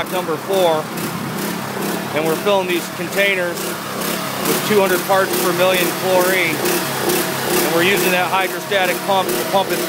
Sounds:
speech

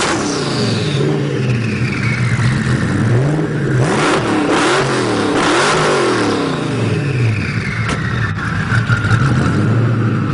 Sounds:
vehicle, car

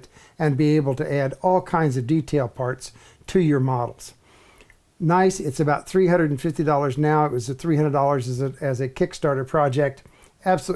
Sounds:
speech

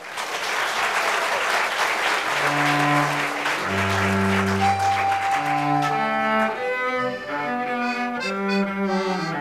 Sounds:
fiddle, accordion, bowed string instrument, musical instrument, cello, classical music, music

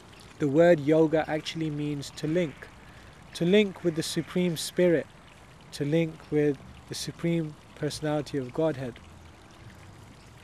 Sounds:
speech

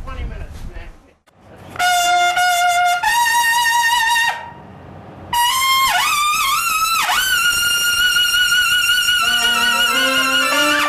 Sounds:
jazz, speech, musical instrument, music, trumpet, brass instrument

